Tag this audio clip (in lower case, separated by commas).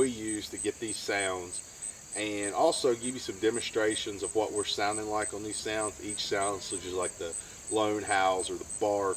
speech